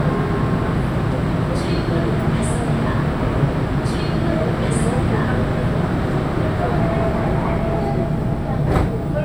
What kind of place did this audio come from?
subway train